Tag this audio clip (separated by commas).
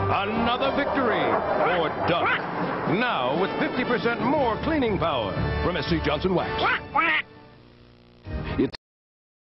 Quack, Music, Speech